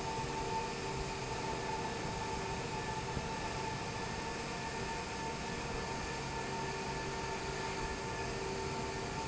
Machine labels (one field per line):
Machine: fan